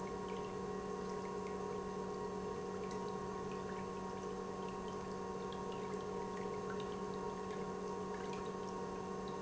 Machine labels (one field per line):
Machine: pump